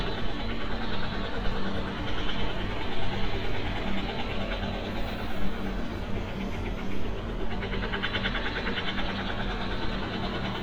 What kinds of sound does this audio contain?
engine of unclear size, jackhammer